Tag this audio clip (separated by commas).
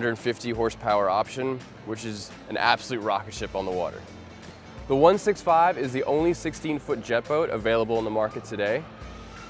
Speech, Music